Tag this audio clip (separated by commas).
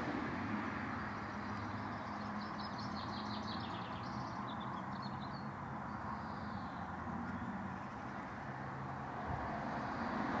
Animal